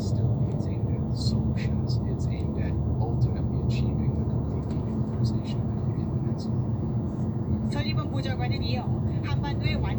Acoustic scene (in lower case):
car